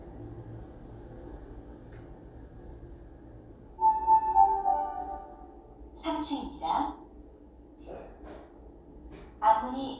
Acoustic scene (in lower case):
elevator